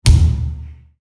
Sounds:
thump

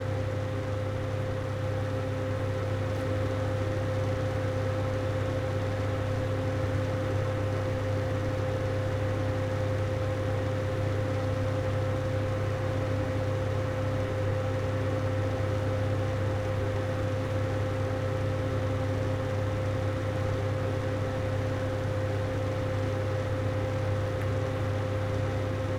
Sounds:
mechanical fan
mechanisms

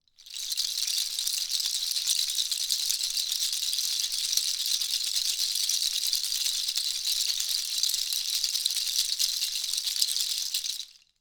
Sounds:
rattle

